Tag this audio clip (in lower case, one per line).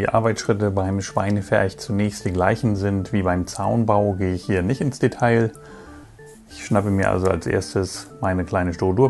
music
speech